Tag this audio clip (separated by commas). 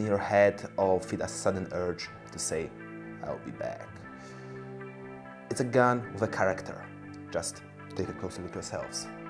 Speech, Music